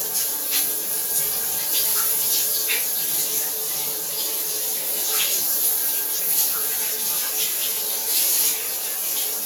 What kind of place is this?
restroom